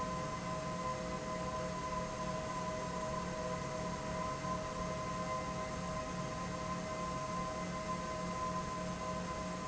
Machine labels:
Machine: fan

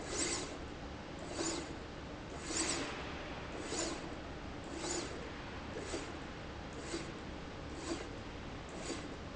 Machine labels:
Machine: slide rail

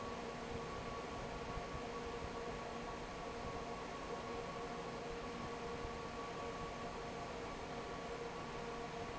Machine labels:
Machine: fan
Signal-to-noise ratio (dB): 6 dB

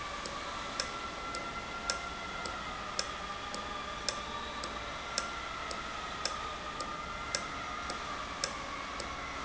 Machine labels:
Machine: valve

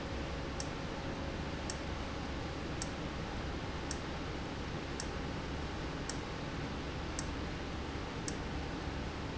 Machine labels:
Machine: valve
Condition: abnormal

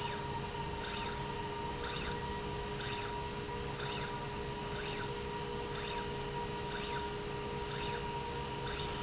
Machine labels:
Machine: slide rail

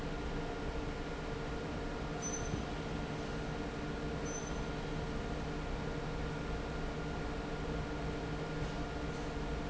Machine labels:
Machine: fan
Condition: normal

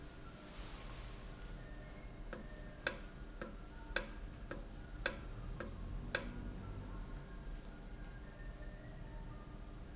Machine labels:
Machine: valve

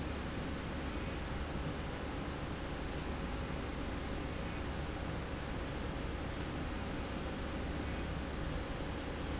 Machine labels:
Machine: slide rail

